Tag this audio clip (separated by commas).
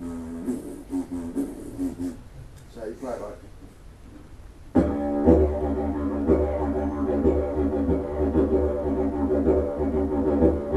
Speech, Didgeridoo, Music